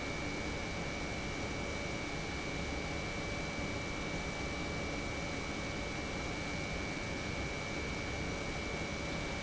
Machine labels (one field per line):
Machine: pump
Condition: normal